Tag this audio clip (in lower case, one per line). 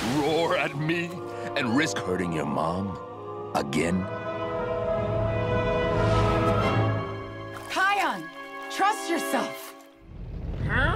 tornado roaring